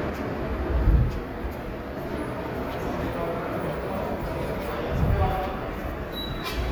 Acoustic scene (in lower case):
subway station